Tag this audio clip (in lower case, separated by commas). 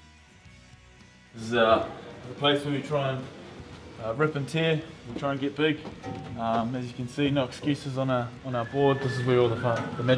speech, music